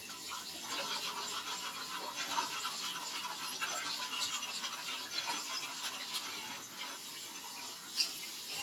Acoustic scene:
kitchen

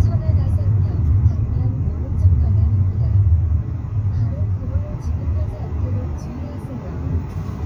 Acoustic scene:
car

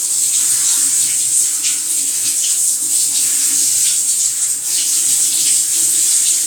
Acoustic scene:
restroom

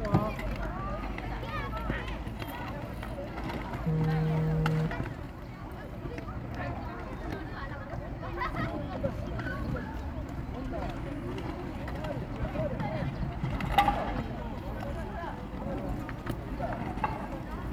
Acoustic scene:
park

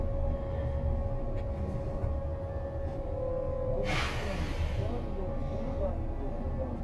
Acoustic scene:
bus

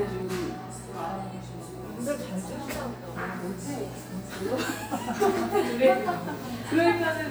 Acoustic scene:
cafe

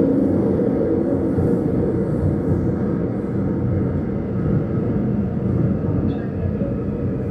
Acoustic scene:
subway train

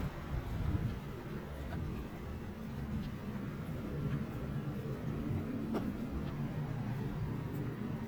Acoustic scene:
residential area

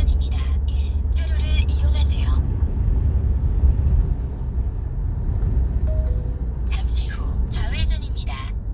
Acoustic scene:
car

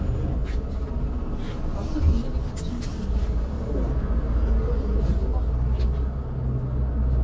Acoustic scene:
bus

